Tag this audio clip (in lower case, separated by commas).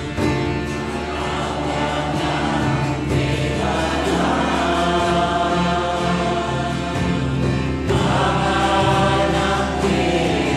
music, mantra